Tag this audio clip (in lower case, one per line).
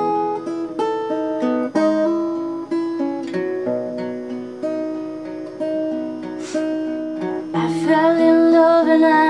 music